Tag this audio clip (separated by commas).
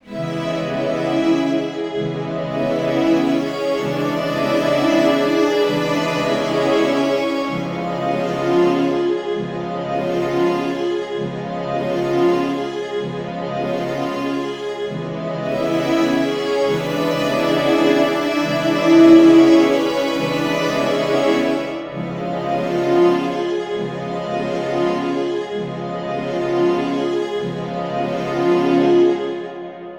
Music, Musical instrument